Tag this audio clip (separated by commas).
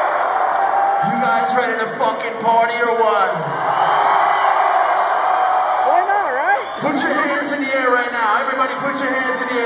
Speech